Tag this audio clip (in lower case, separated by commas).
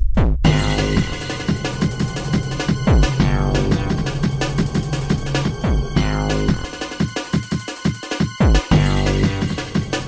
music